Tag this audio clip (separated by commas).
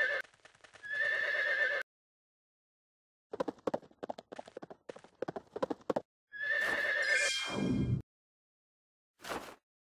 Horse, Clip-clop, Neigh